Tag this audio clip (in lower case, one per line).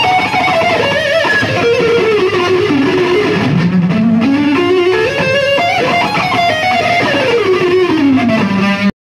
plucked string instrument
music
musical instrument
guitar
bass guitar